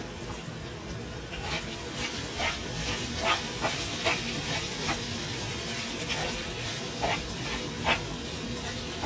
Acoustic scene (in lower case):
kitchen